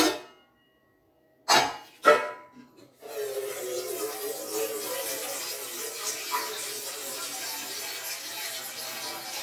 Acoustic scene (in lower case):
kitchen